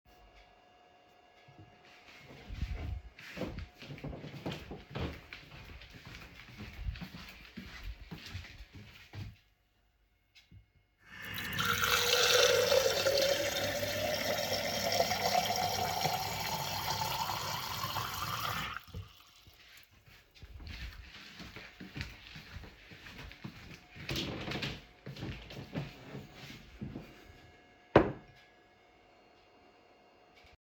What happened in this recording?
I stood up, went to the kitchen, filled my glas with fresh water and got back to my seat in the living room. I carried my phone with me.